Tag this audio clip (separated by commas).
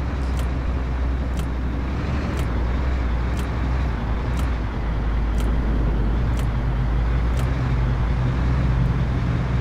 Car